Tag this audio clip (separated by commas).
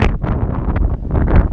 Wind